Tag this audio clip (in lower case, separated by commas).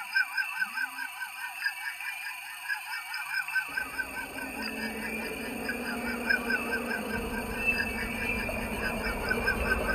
electronic music, music